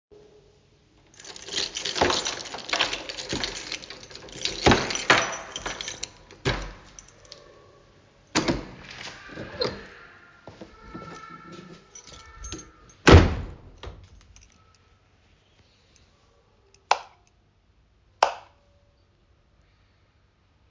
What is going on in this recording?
I took the keychain out, opened and closed the door and then turned on the light while holding the phone.